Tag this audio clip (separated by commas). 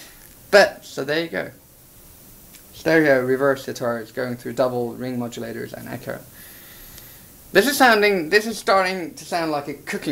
Speech